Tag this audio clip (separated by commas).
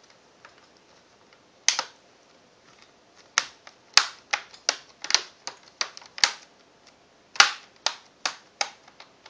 inside a small room